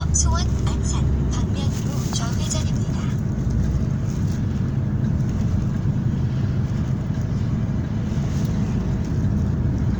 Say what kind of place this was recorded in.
car